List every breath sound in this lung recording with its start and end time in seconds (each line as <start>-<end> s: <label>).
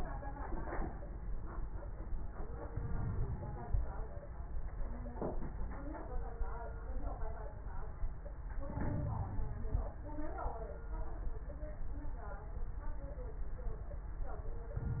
2.76-3.86 s: inhalation
2.76-3.86 s: crackles
8.70-9.87 s: inhalation
8.70-9.87 s: crackles